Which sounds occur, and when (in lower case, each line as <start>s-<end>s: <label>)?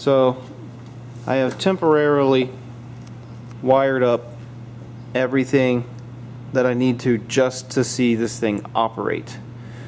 0.0s-0.3s: male speech
0.0s-9.8s: mechanisms
0.4s-0.5s: tick
0.8s-0.9s: tick
1.3s-2.4s: male speech
1.5s-1.5s: tick
1.6s-1.6s: tick
3.0s-3.1s: tick
3.5s-3.5s: tick
3.6s-4.2s: male speech
3.7s-3.7s: tick
4.4s-4.4s: tick
5.1s-5.8s: male speech
5.9s-6.0s: tick
6.5s-9.4s: male speech
8.6s-8.6s: tick
9.3s-9.3s: tick
9.5s-9.8s: breathing